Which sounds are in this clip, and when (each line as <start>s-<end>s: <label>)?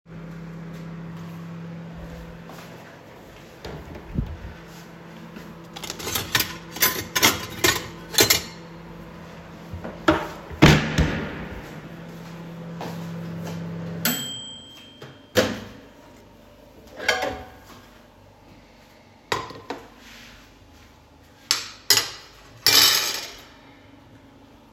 0.0s-16.0s: microwave
1.8s-5.5s: footsteps
5.7s-8.6s: cutlery and dishes
16.9s-17.6s: cutlery and dishes
19.3s-20.0s: cutlery and dishes
21.5s-23.6s: cutlery and dishes